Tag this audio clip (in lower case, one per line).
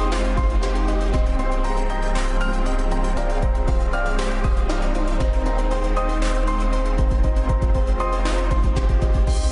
music